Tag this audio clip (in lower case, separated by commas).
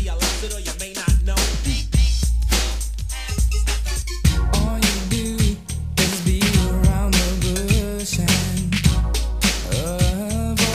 hip hop music, rhythm and blues, music